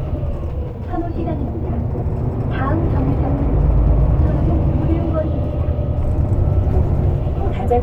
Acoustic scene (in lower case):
bus